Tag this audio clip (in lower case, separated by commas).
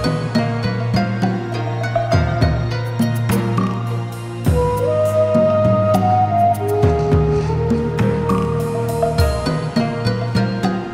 music